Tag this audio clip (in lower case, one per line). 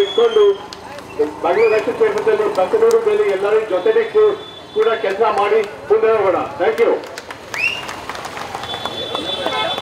speech
monologue
male speech